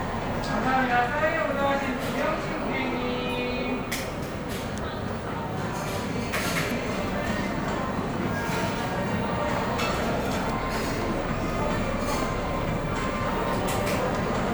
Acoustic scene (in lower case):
cafe